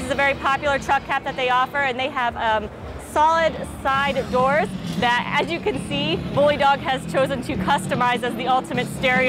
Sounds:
vehicle
speech

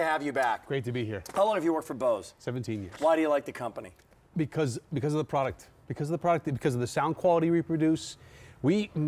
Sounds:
speech

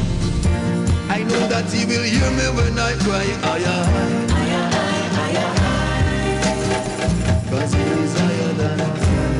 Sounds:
music
reggae

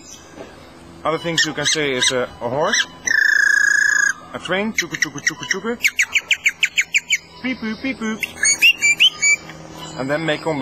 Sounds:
speech
male speech

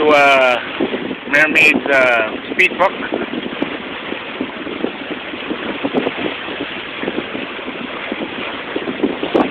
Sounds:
speech

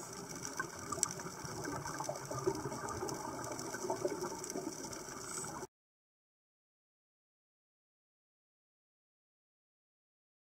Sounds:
scuba diving

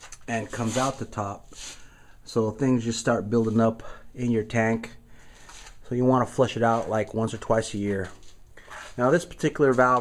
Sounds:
speech

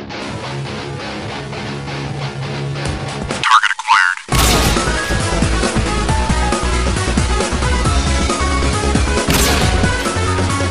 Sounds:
speech
music

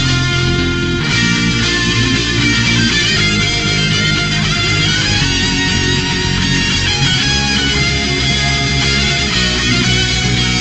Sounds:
music

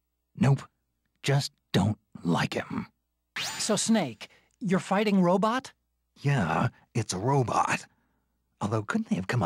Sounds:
speech

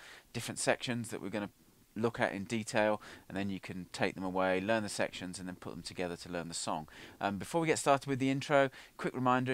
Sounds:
speech

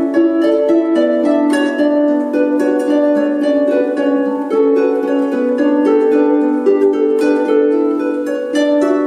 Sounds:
pizzicato
playing harp
harp

